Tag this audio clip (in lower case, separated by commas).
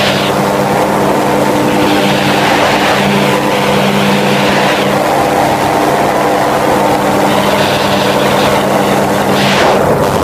helicopter, vehicle, outside, rural or natural